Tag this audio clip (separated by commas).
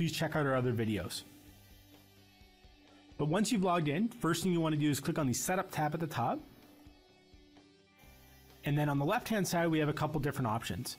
Speech